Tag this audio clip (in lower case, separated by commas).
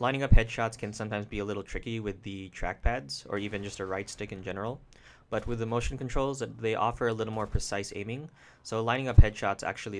speech